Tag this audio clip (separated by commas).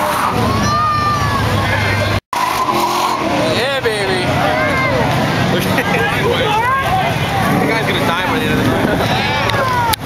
Speech, Motor vehicle (road), Car, Car passing by, Vehicle